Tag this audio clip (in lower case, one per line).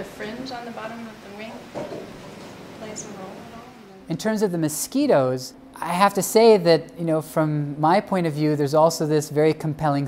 speech